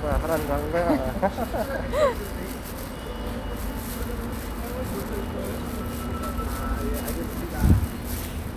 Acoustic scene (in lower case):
street